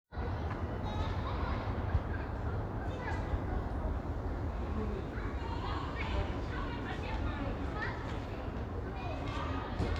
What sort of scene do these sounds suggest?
residential area